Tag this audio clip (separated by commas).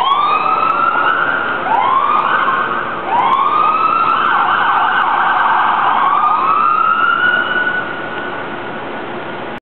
Vehicle, Truck